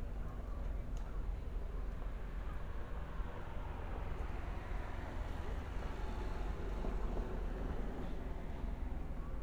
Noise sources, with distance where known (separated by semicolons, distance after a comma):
medium-sounding engine